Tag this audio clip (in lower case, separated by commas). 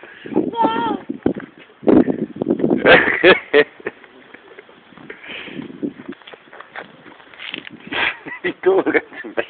speech